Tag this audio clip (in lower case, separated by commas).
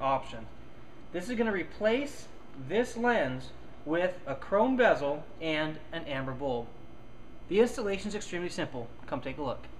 inside a small room, speech